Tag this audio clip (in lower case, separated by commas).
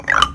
percussion, mallet percussion, musical instrument, xylophone, music